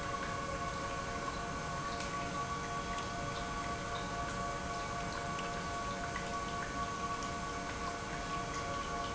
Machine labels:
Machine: pump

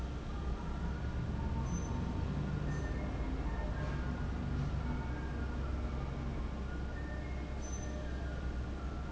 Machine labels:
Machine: fan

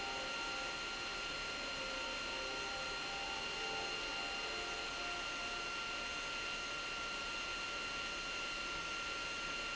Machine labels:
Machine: pump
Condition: abnormal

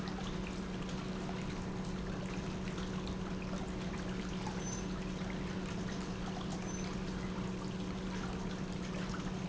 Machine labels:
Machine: pump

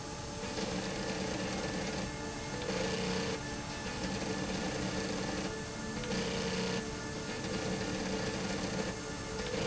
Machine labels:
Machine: slide rail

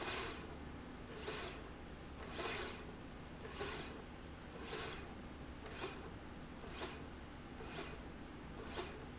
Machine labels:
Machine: slide rail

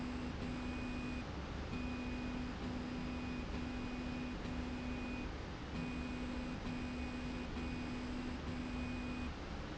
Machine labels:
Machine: slide rail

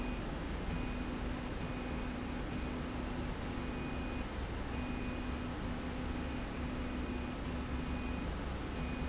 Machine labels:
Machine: slide rail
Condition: normal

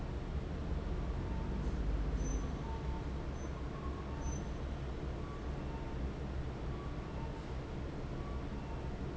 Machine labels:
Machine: fan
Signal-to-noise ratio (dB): -6 dB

